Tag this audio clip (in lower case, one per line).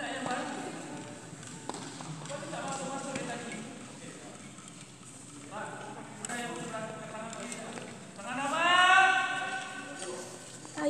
speech